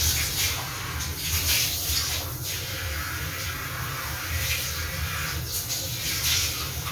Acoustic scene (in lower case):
restroom